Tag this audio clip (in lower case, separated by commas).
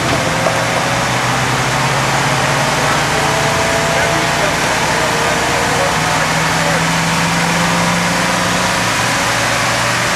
speech